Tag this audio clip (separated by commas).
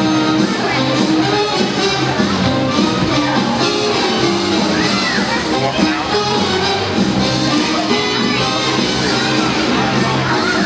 Speech, inside a large room or hall, Music